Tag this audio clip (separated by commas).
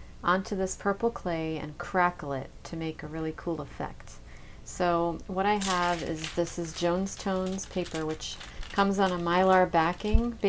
Speech, Crackle